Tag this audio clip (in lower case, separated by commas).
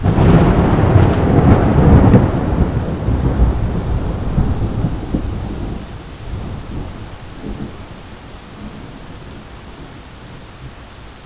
thunderstorm, thunder